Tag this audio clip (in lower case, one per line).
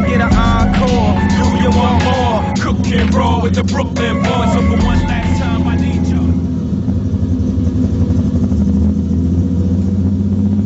music